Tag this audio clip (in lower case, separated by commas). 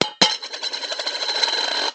domestic sounds, coin (dropping)